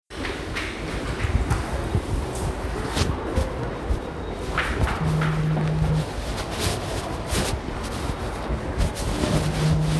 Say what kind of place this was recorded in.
subway station